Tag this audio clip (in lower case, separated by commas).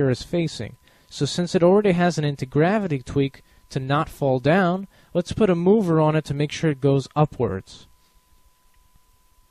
speech